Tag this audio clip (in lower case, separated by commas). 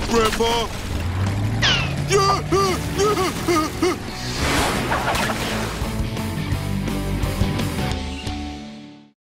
slosh, speech, music, water